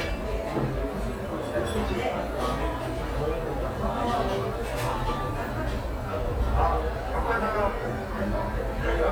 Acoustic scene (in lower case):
cafe